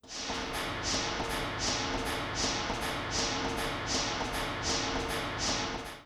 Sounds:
water
mechanisms

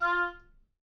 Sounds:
music
wind instrument
musical instrument

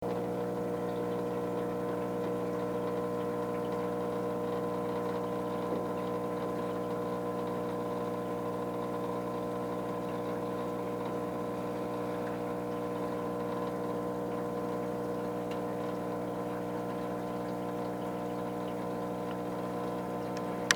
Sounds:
engine

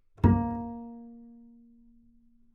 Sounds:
musical instrument
bowed string instrument
music

